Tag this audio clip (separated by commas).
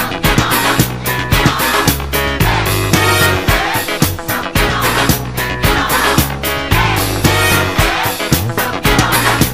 Music